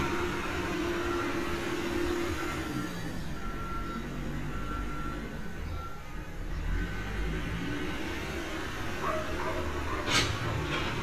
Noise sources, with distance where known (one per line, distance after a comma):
large-sounding engine, near
reverse beeper
dog barking or whining